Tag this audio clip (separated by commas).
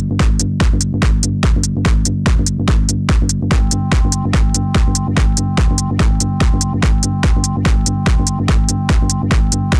Funk, Music